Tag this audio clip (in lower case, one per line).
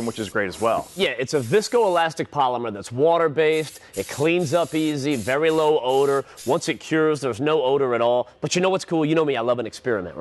speech